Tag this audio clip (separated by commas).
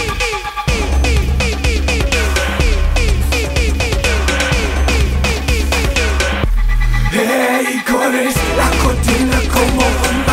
Music